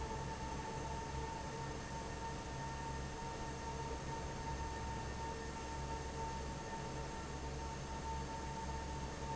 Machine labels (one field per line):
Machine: fan